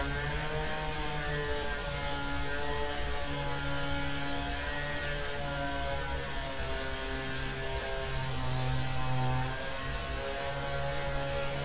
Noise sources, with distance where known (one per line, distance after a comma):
chainsaw